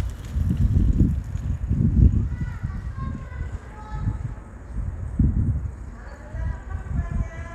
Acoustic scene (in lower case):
residential area